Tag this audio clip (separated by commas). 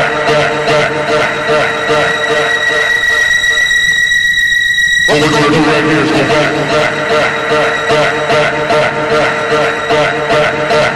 Music, Radio